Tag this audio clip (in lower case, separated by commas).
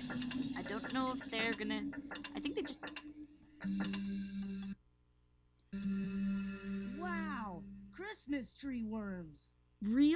speech